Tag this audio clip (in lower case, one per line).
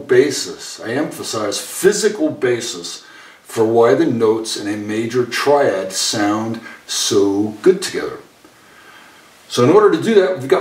speech